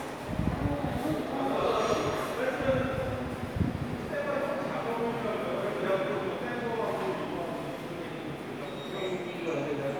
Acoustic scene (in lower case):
subway station